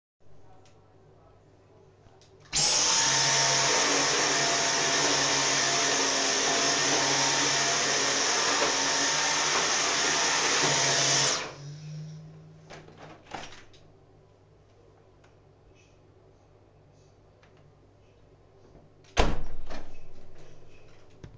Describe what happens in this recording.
I started vacuuming the bathroom, then I opened the window to let a bug out, just to close it again.